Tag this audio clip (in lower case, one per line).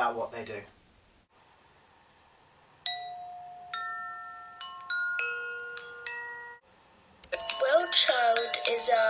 inside a small room
music
speech
chime